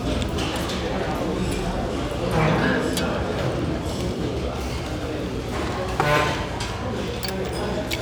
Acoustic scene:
restaurant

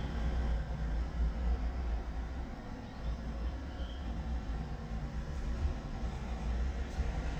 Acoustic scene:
residential area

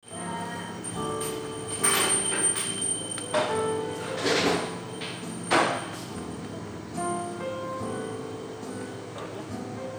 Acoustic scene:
cafe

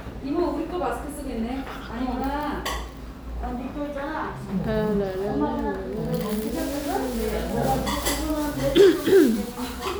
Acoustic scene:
restaurant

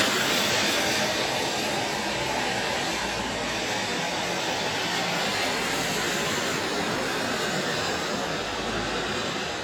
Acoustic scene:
street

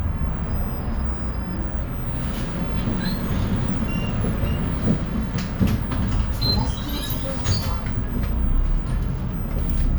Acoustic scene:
bus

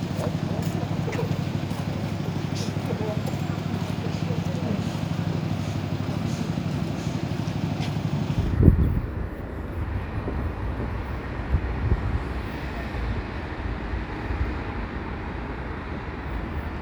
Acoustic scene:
street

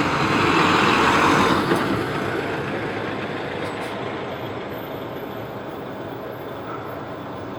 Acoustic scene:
street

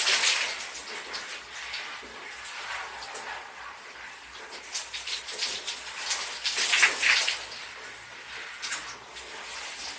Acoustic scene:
restroom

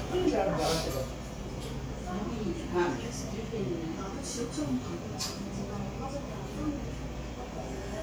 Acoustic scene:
crowded indoor space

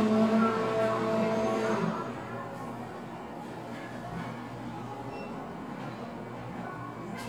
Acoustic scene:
cafe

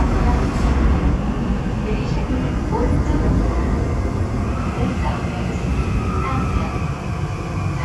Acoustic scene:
subway train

